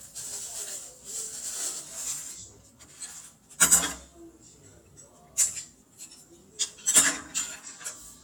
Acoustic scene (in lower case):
kitchen